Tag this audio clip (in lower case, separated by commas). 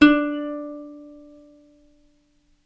musical instrument, plucked string instrument, music